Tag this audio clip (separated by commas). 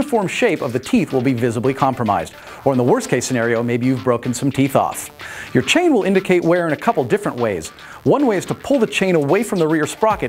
Music, Speech